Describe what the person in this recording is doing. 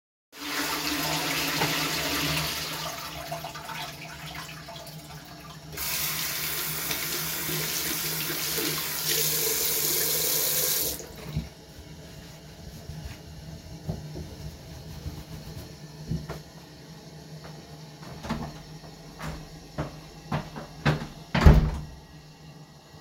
I flushed the toilet and then started recording so the sound would be ongoing when the scene starts, i then washed my hands under running water and dried them afterwards, then i walked out and closed the door behind me